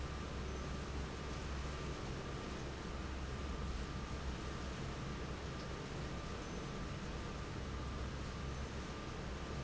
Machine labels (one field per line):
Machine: fan